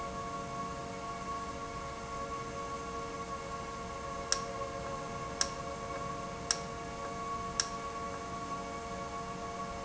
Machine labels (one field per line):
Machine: valve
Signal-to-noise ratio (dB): -6 dB